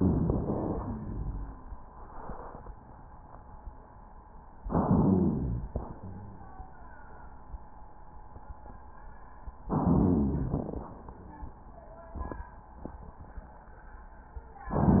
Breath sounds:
Inhalation: 0.00-0.95 s, 4.68-5.66 s, 9.68-10.48 s, 14.72-15.00 s
Exhalation: 0.95-1.71 s, 5.66-6.57 s, 10.48-11.54 s
Wheeze: 0.95-1.71 s, 5.66-6.57 s, 11.22-11.56 s
Rhonchi: 0.00-0.95 s, 4.68-5.66 s, 9.68-10.48 s, 14.72-15.00 s
Crackles: 10.48-10.94 s

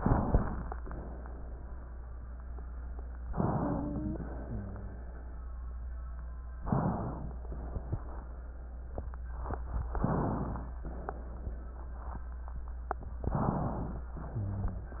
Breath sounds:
Inhalation: 3.28-4.20 s, 6.64-7.46 s, 10.00-10.82 s, 13.26-14.08 s
Exhalation: 0.00-0.69 s, 4.42-5.18 s, 14.27-15.00 s
Wheeze: 3.28-4.20 s
Rhonchi: 4.42-5.18 s, 14.27-15.00 s

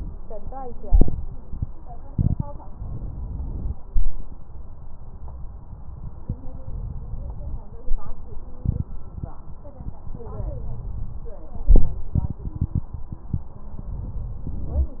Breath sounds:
Inhalation: 2.74-3.73 s, 6.64-7.63 s, 10.18-11.39 s

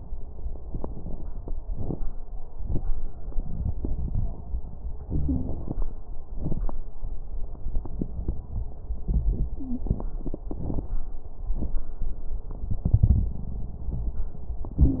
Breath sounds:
Wheeze: 5.05-5.59 s, 9.59-9.87 s

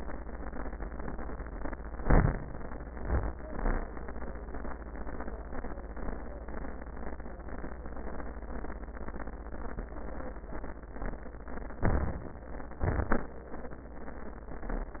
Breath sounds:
Inhalation: 1.97-3.00 s, 11.81-12.79 s
Exhalation: 3.07-3.95 s, 12.79-13.54 s

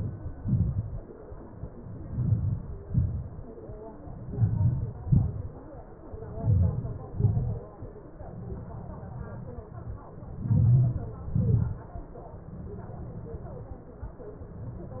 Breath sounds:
Inhalation: 2.10-2.65 s, 4.37-4.93 s, 6.49-6.99 s, 10.57-11.07 s
Exhalation: 2.92-3.47 s, 5.05-5.55 s, 7.14-7.65 s, 11.35-11.86 s
Crackles: 2.10-2.65 s, 2.92-3.47 s, 4.37-4.93 s, 5.05-5.55 s, 6.50-7.01 s, 7.14-7.65 s, 10.57-11.07 s, 11.35-11.86 s

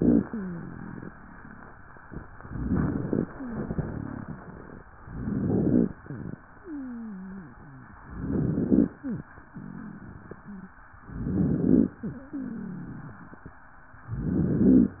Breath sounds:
Inhalation: 2.41-3.27 s, 5.05-5.90 s, 8.08-8.94 s, 11.12-11.97 s, 14.19-15.00 s
Wheeze: 0.23-1.11 s, 3.26-4.57 s, 6.57-7.96 s, 9.49-10.79 s, 11.97-13.27 s
Crackles: 2.41-3.27 s, 5.05-5.90 s, 8.08-8.94 s, 11.12-11.97 s, 14.19-15.00 s

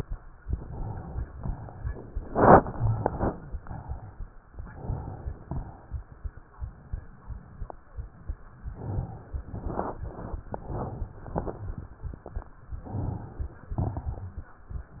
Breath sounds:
Inhalation: 0.46-1.32 s, 2.53-3.29 s, 4.49-5.43 s, 8.70-9.52 s, 10.53-11.33 s, 12.84-13.80 s
Exhalation: 1.39-2.25 s, 3.32-4.35 s, 5.46-6.39 s, 9.49-10.40 s, 11.34-12.47 s, 13.77-14.72 s
Crackles: 2.53-3.29 s, 5.46-6.39 s, 9.49-10.40 s, 11.34-12.47 s, 13.77-14.72 s

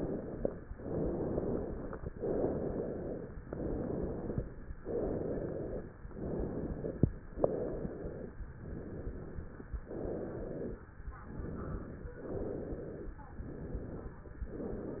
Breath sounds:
Inhalation: 0.70-2.06 s, 3.40-4.66 s, 6.05-7.23 s, 8.55-9.73 s, 11.13-12.17 s, 13.28-14.32 s
Exhalation: 0.00-0.60 s, 2.12-3.38 s, 4.77-5.95 s, 7.27-8.45 s, 9.77-10.93 s, 12.18-13.21 s, 14.42-15.00 s

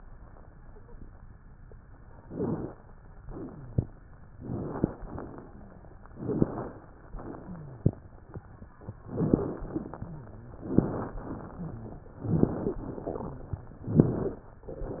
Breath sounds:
Inhalation: 2.18-2.77 s, 4.34-4.93 s, 6.17-6.76 s, 9.07-9.60 s, 10.64-11.21 s, 12.22-12.79 s, 13.89-14.46 s
Exhalation: 3.26-3.85 s, 4.97-5.56 s, 7.17-7.91 s, 9.60-10.13 s, 11.20-12.05 s, 12.85-13.70 s
Wheeze: 2.26-2.71 s, 3.26-3.85 s, 5.46-5.88 s, 7.46-7.91 s, 9.07-9.60 s, 9.66-9.96 s, 11.55-12.11 s, 12.62-12.85 s, 14.23-14.46 s

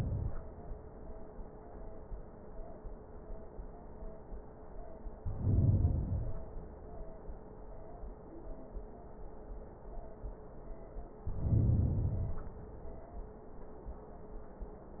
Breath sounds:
Inhalation: 5.20-6.70 s, 11.12-12.62 s

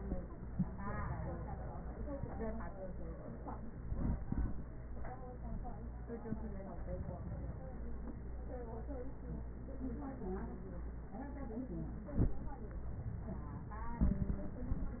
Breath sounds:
No breath sounds were labelled in this clip.

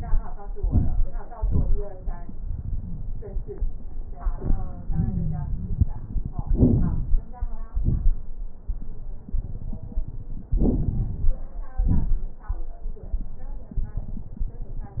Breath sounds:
Inhalation: 0.52-1.21 s, 6.45-7.28 s, 10.50-11.36 s
Exhalation: 1.32-1.89 s, 7.73-8.20 s, 11.75-12.33 s
Wheeze: 4.86-5.95 s
Crackles: 0.52-1.21 s, 1.32-1.89 s, 6.45-7.28 s, 7.73-8.20 s, 10.50-11.36 s, 11.75-12.33 s

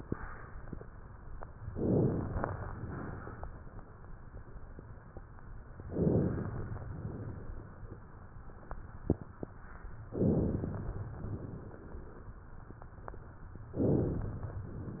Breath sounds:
Inhalation: 1.67-2.64 s, 5.86-6.83 s, 10.13-11.10 s, 13.74-14.71 s
Exhalation: 2.77-3.88 s, 6.85-8.00 s, 11.18-12.32 s

